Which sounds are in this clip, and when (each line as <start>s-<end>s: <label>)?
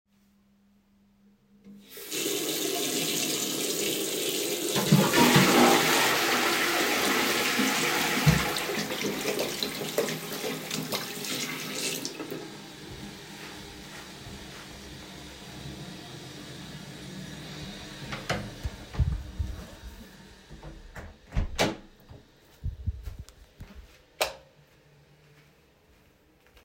1.8s-12.5s: running water
4.6s-26.3s: toilet flushing
18.0s-19.3s: door
18.6s-19.6s: footsteps
20.5s-21.9s: door
22.6s-23.5s: footsteps
24.1s-24.3s: door
24.2s-24.4s: light switch